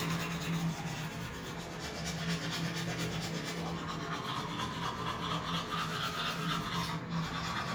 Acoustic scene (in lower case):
restroom